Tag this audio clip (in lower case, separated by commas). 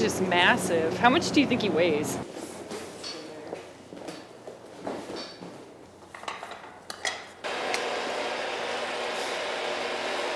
inside a small room, speech